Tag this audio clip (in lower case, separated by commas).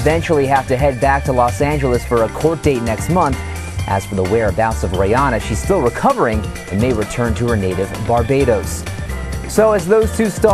music, speech